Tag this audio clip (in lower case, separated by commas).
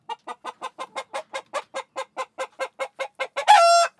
livestock, animal, fowl, chicken